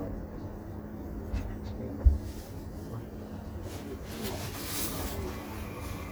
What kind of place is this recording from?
subway train